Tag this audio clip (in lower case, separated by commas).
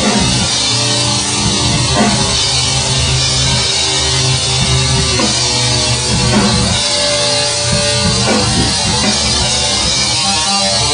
music, rock music, heavy metal